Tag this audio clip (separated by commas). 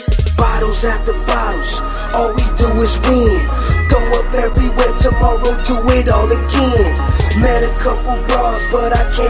Independent music, Music